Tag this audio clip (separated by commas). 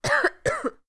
Respiratory sounds, Cough